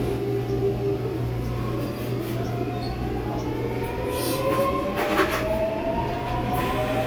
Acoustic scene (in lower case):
subway train